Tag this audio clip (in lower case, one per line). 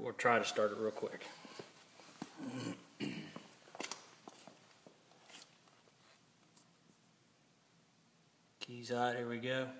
speech